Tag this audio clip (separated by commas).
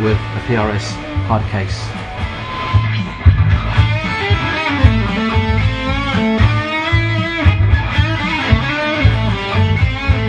Speech, Music